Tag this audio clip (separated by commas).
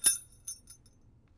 Keys jangling, home sounds